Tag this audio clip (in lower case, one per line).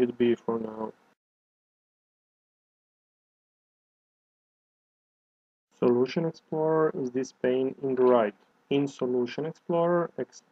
speech